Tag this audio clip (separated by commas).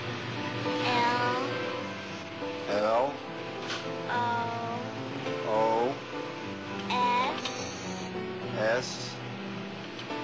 Speech, Music